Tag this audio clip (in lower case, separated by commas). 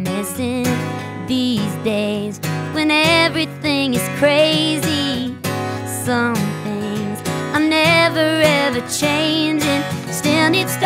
tender music, music